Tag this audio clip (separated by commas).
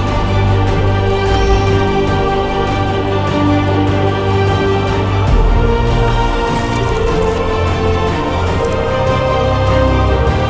Music